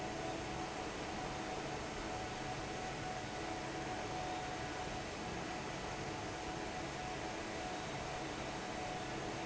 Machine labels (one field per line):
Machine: fan